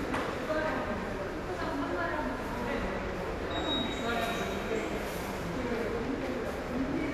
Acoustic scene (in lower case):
subway station